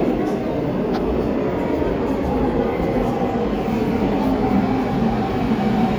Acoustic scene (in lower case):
subway station